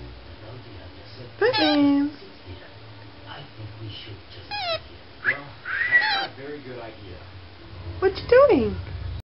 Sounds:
speech

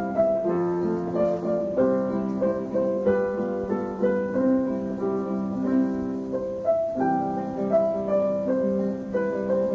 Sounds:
musical instrument
music
guitar
plucked string instrument

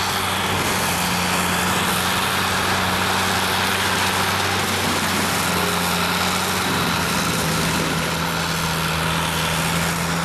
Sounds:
vehicle
outside, rural or natural

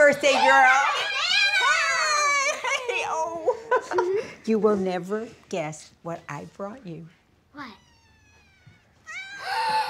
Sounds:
caterwaul

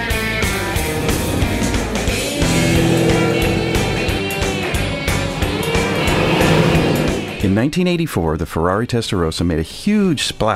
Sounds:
car passing by
speech
motor vehicle (road)
music
vehicle
car

